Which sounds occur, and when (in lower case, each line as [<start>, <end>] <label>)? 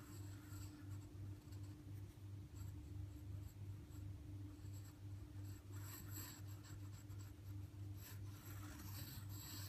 [0.00, 1.02] writing
[0.00, 9.65] mechanisms
[1.33, 1.76] writing
[1.89, 2.17] writing
[2.50, 3.18] writing
[3.37, 3.57] writing
[3.86, 4.04] writing
[4.49, 4.90] writing
[5.37, 7.50] writing
[7.94, 9.65] writing